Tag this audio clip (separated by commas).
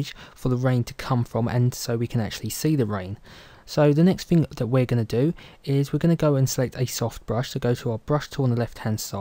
Speech